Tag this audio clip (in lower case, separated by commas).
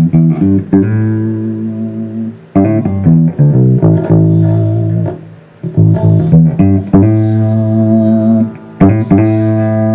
acoustic guitar, bass guitar, musical instrument, music, guitar